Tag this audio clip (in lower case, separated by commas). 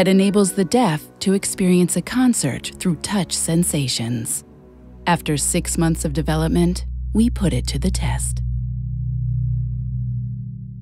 music, speech